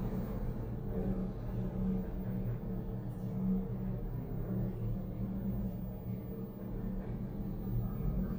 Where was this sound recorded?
in an elevator